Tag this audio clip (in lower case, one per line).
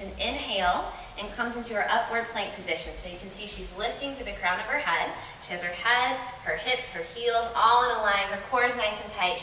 speech